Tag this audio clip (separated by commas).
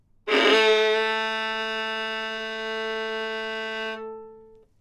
Musical instrument, Music, Bowed string instrument